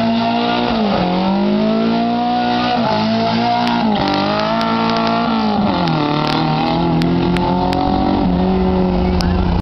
A motor vehicle engine revs loudly